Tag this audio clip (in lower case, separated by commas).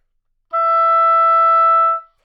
musical instrument, wind instrument, music